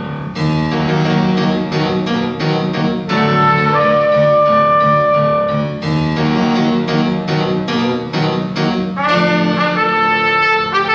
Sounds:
musical instrument, brass instrument, trumpet, music, classical music, piano

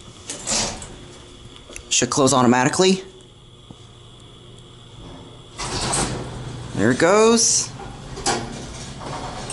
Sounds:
sliding door, speech, inside a small room

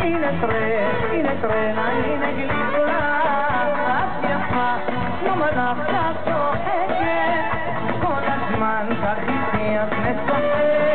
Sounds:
singing, music

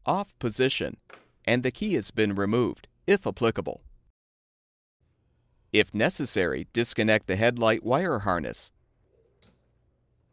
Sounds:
speech

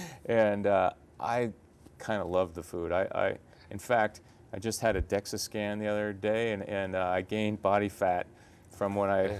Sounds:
speech

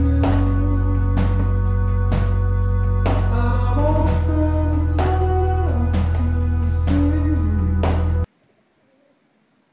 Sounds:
music

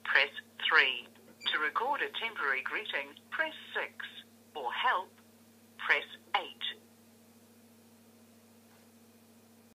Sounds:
speech

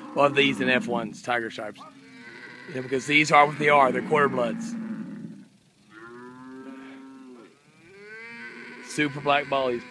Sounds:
cattle mooing, cattle, livestock, moo

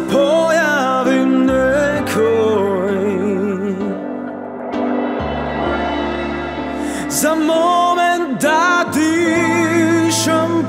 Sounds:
music

